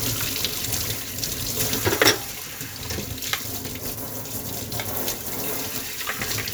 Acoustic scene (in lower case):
kitchen